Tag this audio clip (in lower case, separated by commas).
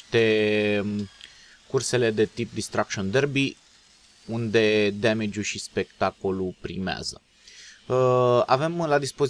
speech